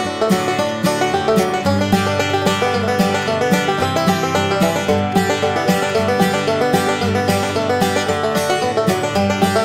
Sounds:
Music

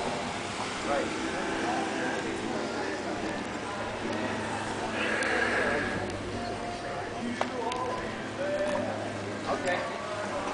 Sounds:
Music, Speech

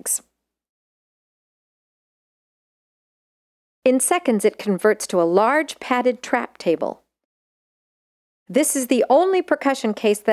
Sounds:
Speech

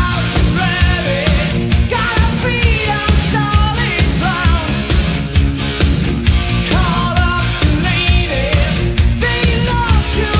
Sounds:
Music

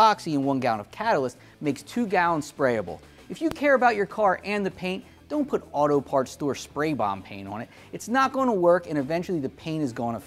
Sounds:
Speech

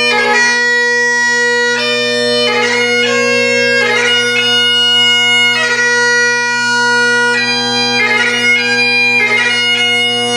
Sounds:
Bagpipes, woodwind instrument

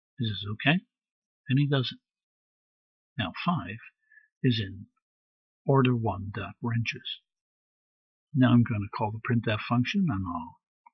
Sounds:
Speech

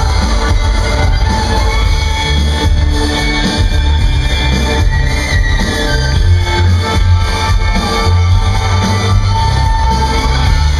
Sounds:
Music

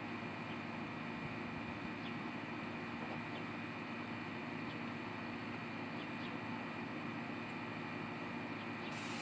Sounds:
Animal

